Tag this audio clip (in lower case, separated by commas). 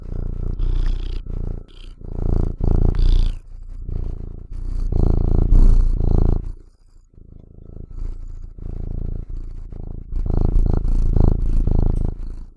animal, domestic animals, cat, purr